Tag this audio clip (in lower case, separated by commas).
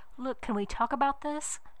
woman speaking, human voice, speech